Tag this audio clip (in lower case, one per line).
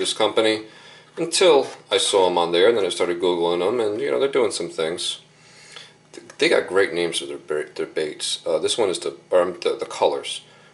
speech